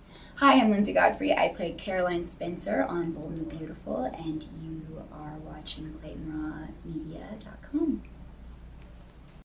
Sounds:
Speech

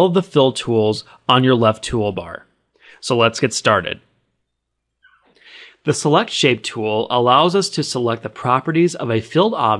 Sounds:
Speech

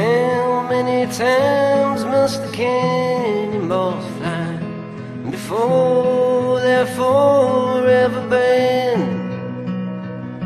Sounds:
Music

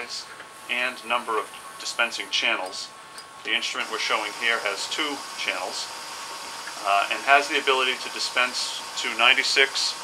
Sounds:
Speech

